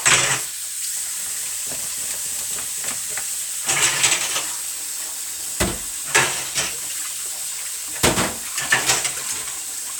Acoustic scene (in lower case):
kitchen